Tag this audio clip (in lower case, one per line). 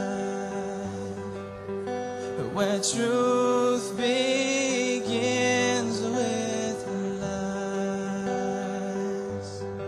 music